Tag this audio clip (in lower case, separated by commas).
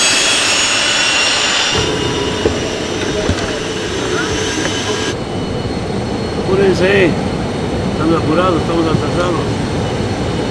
airplane